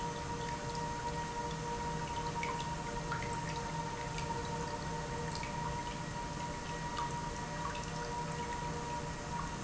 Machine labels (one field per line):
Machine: pump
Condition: normal